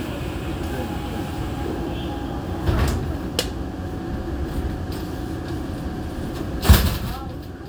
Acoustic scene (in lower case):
subway train